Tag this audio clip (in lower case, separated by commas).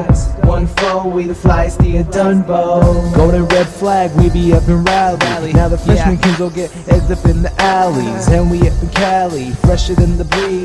rhythm and blues, music